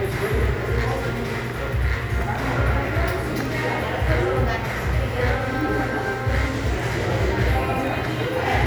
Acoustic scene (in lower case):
crowded indoor space